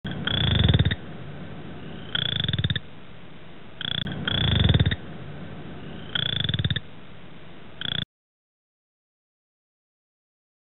A frog cracking loudly